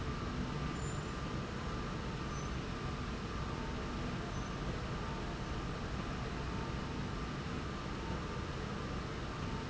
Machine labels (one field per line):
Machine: slide rail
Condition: normal